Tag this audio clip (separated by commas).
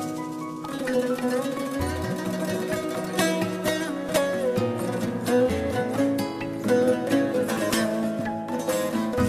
Music